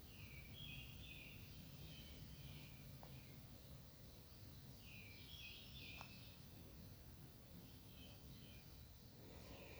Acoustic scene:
park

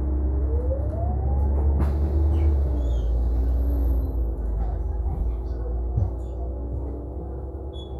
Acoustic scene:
bus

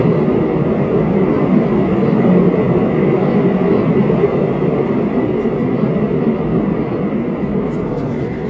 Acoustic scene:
subway train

